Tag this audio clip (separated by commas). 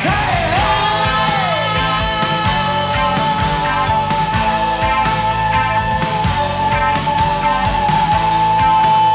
Progressive rock, Psychedelic rock